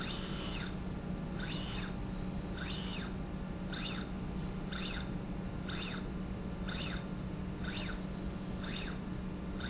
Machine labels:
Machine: slide rail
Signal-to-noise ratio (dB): -6 dB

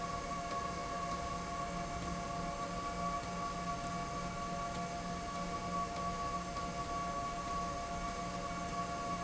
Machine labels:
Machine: slide rail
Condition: abnormal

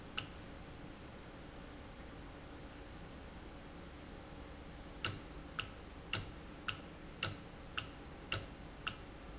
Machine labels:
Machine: valve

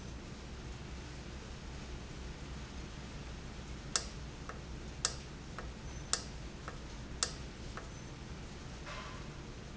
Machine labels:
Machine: valve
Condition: normal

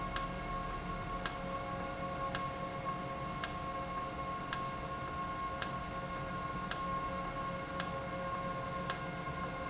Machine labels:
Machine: valve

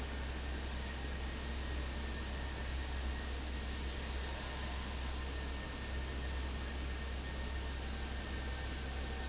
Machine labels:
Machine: fan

